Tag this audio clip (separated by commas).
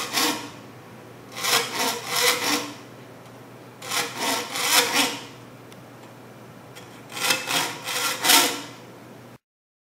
Filing (rasp), Rub